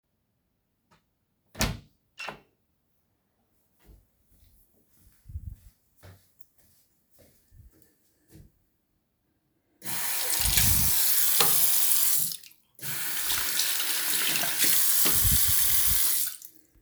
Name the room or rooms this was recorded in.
bathroom